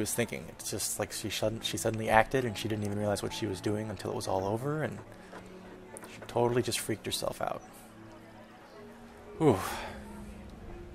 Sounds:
Music, Speech

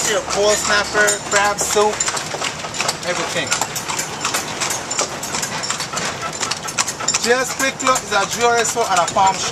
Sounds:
Clip-clop, Speech

